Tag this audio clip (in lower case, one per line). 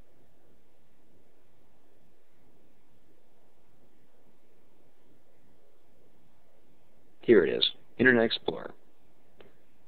speech